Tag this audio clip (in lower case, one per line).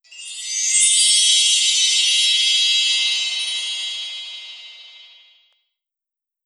chime
bell